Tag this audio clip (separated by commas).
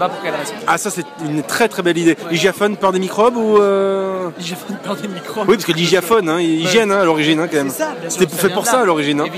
Speech